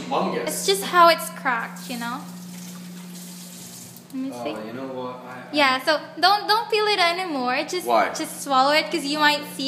A man speaks followed by a water tap and then a girl speaks